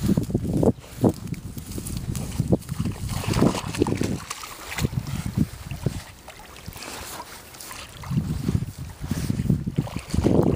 Water splashing